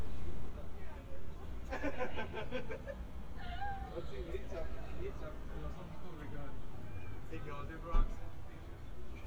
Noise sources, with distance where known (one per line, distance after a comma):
person or small group talking, near